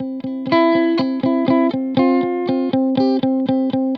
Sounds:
Plucked string instrument, Guitar, Music, Musical instrument, Electric guitar

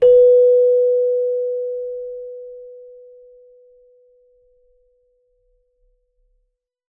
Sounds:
Musical instrument, Keyboard (musical), Music

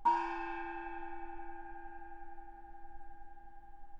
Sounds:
Music, Musical instrument, Gong, Percussion

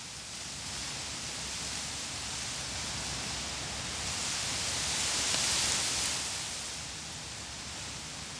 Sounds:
Wind

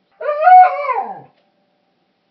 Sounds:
pets, Animal, Dog

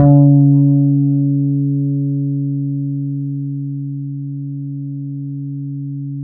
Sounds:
Guitar, Music, Bass guitar, Musical instrument, Plucked string instrument

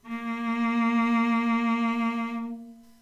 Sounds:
Music, Musical instrument, Bowed string instrument

